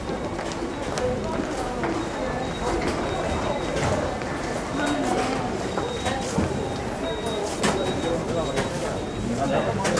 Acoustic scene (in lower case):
subway station